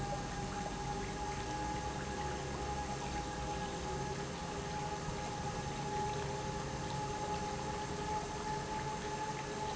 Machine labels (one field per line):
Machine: pump